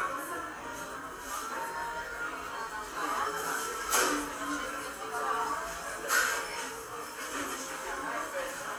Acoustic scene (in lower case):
cafe